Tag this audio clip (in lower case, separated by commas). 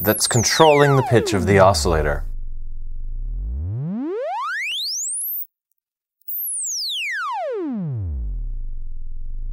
speech, synthesizer